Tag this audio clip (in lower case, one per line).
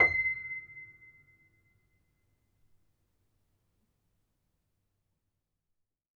keyboard (musical)
piano
music
musical instrument